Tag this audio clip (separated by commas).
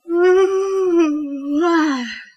Human voice